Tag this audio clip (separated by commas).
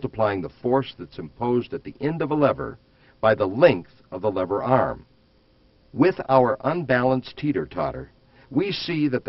Speech